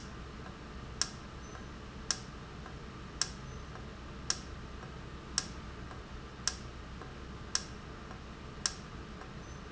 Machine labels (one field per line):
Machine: valve